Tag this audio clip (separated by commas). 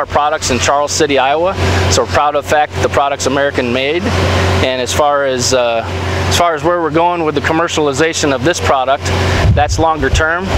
Vehicle, Speech, outside, urban or man-made